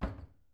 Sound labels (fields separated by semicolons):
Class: cupboard; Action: closing; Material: wooden